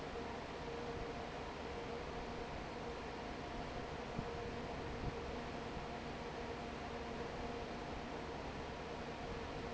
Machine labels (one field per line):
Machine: fan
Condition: normal